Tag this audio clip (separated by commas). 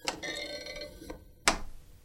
Thump